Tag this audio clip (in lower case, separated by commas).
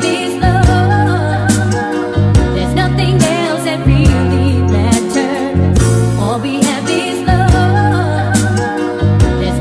soul music, music